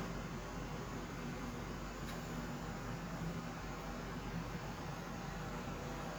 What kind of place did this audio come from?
kitchen